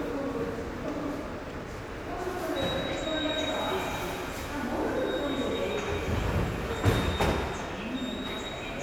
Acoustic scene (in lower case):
subway station